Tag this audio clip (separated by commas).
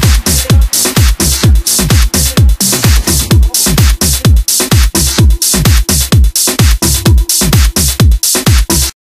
Music